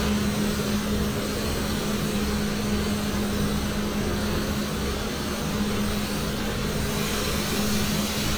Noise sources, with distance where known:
large-sounding engine, near

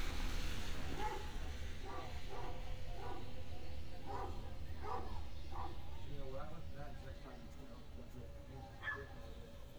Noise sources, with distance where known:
person or small group talking, near; dog barking or whining, far

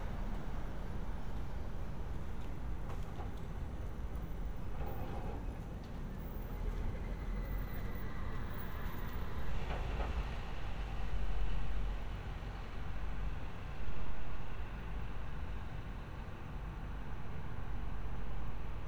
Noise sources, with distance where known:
background noise

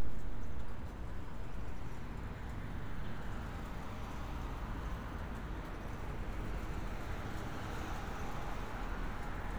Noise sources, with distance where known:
background noise

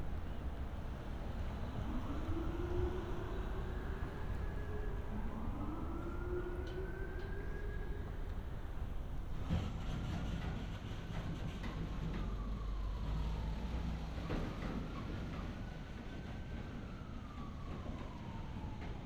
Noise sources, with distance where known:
siren, far

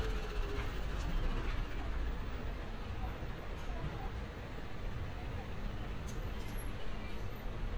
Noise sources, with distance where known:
unidentified impact machinery, far

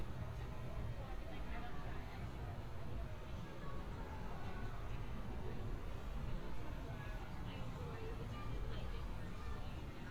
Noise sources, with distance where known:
person or small group talking

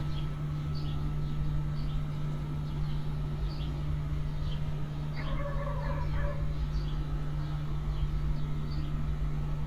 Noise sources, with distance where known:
dog barking or whining, far

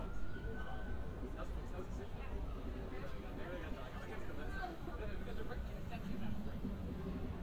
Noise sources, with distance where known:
unidentified alert signal, far; person or small group talking, near

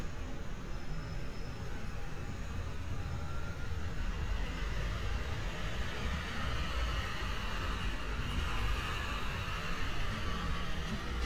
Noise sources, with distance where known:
large-sounding engine, near

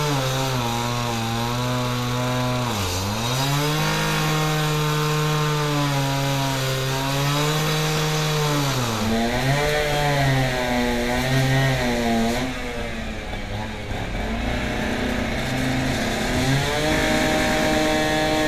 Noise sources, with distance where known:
unidentified powered saw

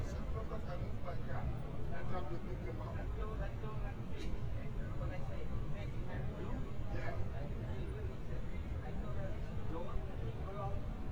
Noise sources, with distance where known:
person or small group talking

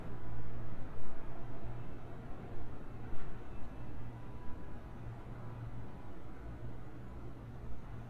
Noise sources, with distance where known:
unidentified alert signal

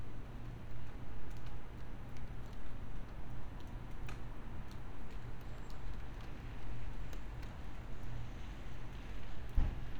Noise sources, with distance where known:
background noise

